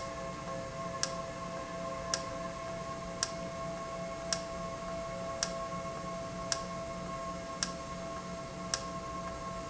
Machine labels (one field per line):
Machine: valve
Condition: normal